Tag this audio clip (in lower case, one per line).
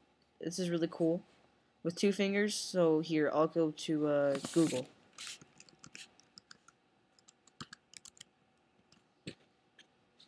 speech